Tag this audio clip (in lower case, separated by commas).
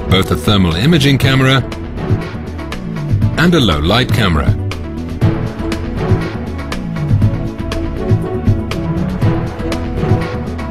speech, music